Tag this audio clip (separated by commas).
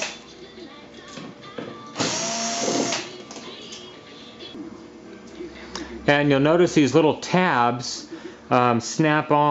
Speech, Music